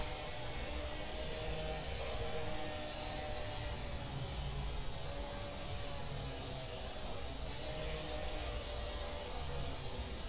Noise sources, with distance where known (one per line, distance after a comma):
large rotating saw, far